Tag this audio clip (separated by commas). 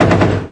Explosion, Gunshot